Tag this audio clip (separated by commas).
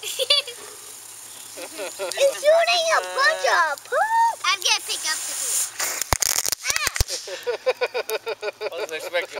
Speech